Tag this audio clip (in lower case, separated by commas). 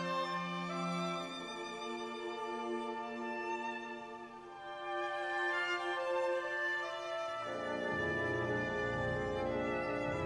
music, musical instrument, violin